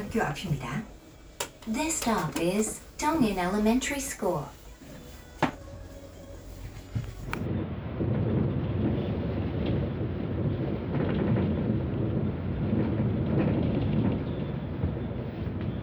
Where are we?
on a bus